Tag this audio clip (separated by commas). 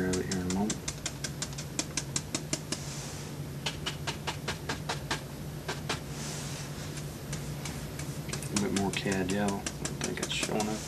Speech